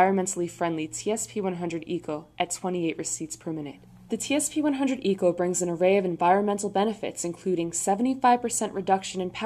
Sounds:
speech

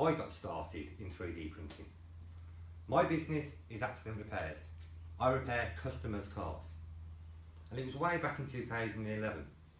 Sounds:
speech

